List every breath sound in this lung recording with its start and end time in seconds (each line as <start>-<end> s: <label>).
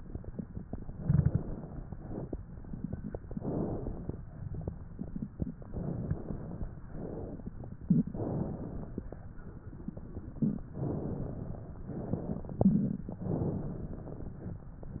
0.93-1.86 s: inhalation
3.28-4.12 s: inhalation
5.71-6.79 s: inhalation
6.85-7.51 s: exhalation
8.12-9.05 s: inhalation
10.81-11.75 s: inhalation
11.92-12.70 s: exhalation
13.22-14.42 s: inhalation